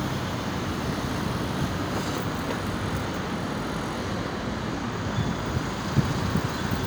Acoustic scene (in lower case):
street